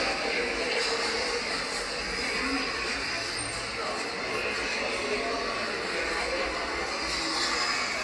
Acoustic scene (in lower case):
subway station